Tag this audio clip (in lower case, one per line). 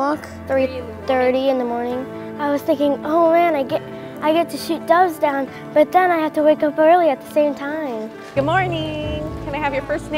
music
speech